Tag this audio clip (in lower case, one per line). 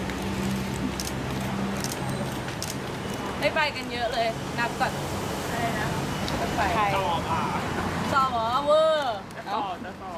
speech